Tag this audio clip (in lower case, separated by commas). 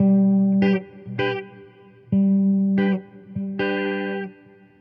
musical instrument, plucked string instrument, guitar, electric guitar, music